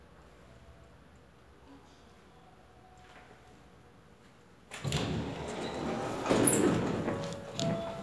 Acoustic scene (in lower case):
elevator